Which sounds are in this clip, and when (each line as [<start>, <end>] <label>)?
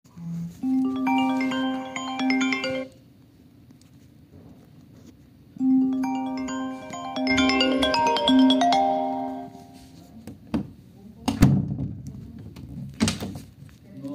[0.03, 3.05] phone ringing
[5.40, 9.97] phone ringing
[10.25, 14.14] door